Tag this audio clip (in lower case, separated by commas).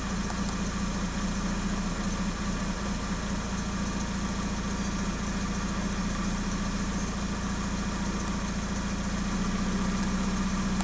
medium engine (mid frequency), engine